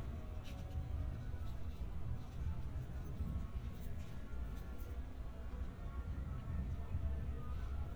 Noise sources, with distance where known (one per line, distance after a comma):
music from an unclear source, far